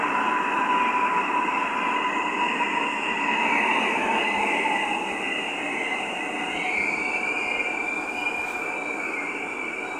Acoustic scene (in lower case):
subway station